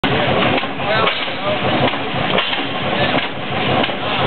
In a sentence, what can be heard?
A vehicle idles and sputters as people speak